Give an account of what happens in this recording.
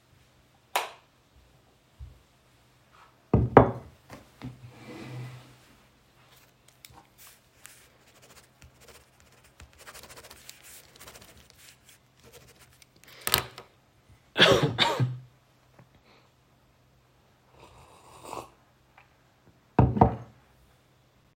I turned on the lights in a living room, walked over to a table, moved back a chair and sat on it. Then I scribbled on a paper before coughing and having a sip of tea.